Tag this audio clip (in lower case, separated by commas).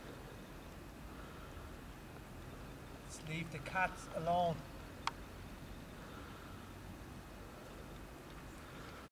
speech